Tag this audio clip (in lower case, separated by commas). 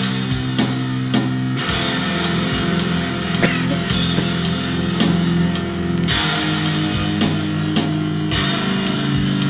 acoustic guitar, musical instrument, music, strum